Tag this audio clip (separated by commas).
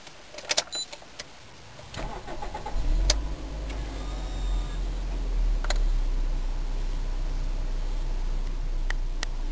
Vehicle, Car